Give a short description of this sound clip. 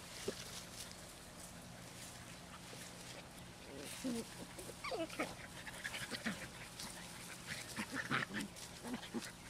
Dogs are whimpering and snarling